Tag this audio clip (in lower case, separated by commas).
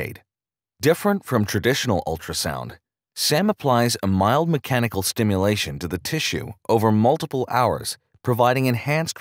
speech